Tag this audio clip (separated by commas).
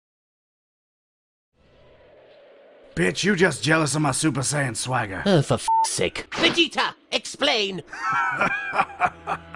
Male speech, Speech, Conversation